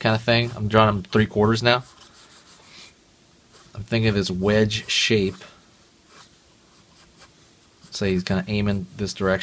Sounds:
inside a small room, Speech, Writing

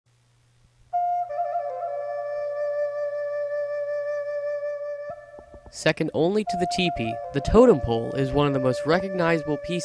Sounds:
Flute, woodwind instrument, Music, Speech

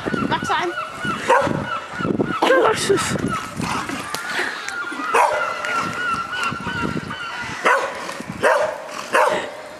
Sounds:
dog bow-wow, Bow-wow, Speech

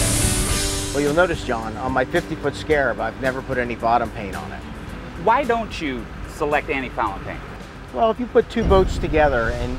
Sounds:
Speech, speedboat, Music

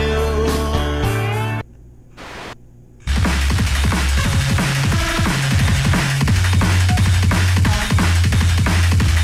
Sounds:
Radio, Music

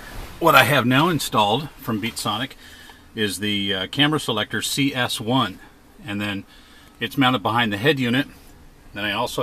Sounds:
Speech

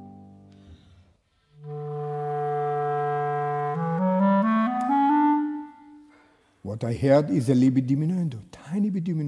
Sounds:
playing clarinet

